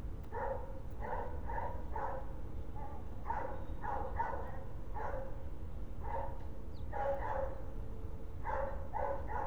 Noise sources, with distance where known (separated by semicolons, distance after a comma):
dog barking or whining, near